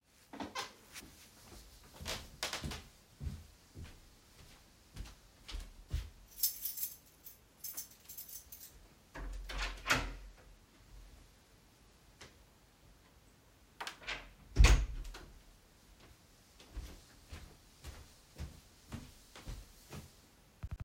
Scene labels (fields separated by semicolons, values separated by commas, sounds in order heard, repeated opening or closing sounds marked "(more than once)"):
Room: hallway; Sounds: footsteps, keys, door (more than once)